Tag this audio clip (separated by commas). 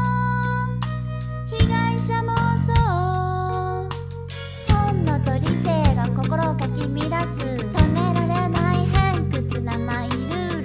Music